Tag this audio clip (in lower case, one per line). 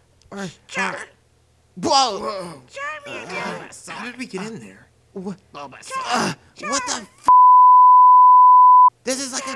bleep